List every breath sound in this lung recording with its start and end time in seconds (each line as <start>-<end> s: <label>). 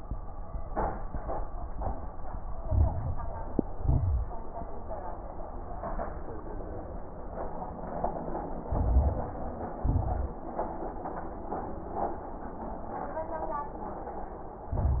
2.58-3.65 s: inhalation
2.58-3.65 s: crackles
3.70-4.37 s: exhalation
3.70-4.37 s: crackles
8.68-9.80 s: inhalation
8.68-9.80 s: crackles
9.82-10.37 s: exhalation
9.82-10.37 s: crackles
14.74-15.00 s: inhalation
14.74-15.00 s: crackles